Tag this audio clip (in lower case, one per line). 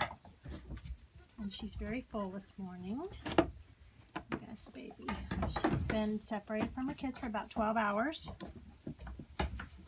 speech